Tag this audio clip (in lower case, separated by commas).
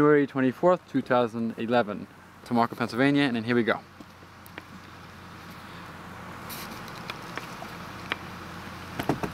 speech, liquid